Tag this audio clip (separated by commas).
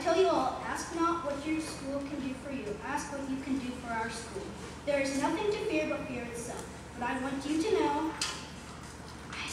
monologue, Speech, Child speech